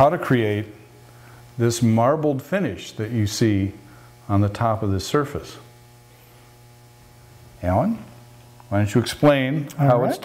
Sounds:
speech

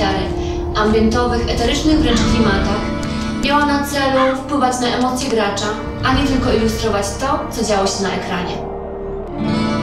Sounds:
speech
music

